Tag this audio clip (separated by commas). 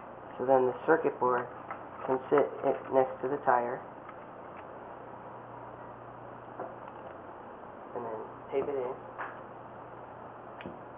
Speech